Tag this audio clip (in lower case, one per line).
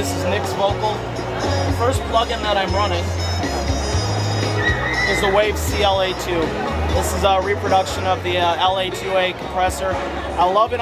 music
speech